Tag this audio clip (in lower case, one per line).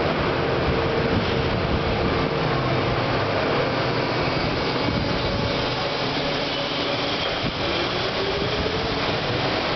subway
railroad car
vehicle
train